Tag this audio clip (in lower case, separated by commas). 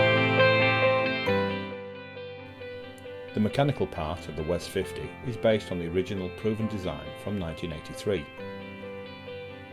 music, speech